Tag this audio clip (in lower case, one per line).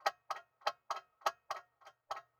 clock
mechanisms